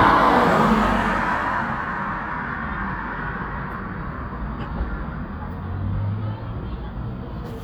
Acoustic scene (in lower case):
street